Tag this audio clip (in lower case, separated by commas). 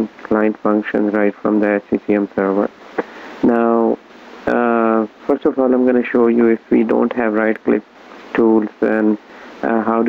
speech